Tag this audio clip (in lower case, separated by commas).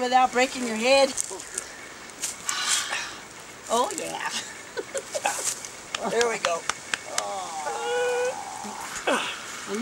male speech, speech